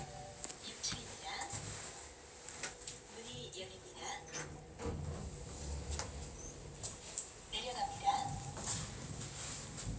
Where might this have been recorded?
in an elevator